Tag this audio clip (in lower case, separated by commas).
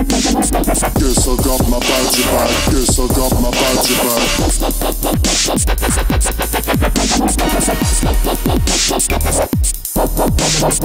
music